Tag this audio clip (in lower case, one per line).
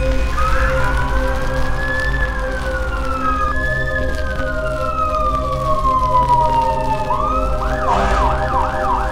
fire